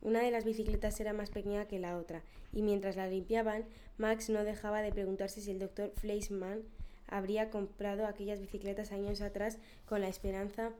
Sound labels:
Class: speech